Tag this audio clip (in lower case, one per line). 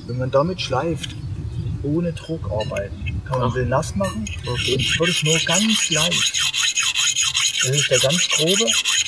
sharpen knife